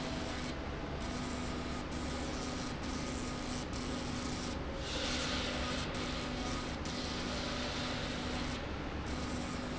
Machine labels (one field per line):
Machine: slide rail